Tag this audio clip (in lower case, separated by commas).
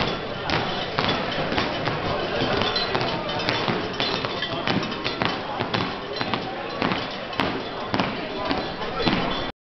speech